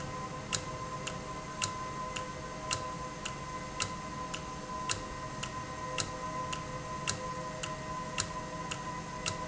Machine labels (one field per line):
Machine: valve